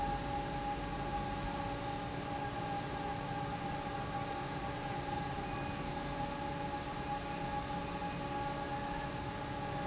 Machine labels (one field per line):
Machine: fan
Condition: normal